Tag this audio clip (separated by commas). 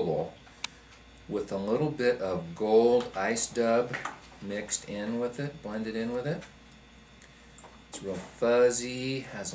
Speech